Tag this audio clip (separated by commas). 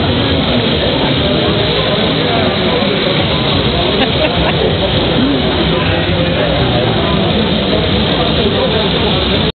Speech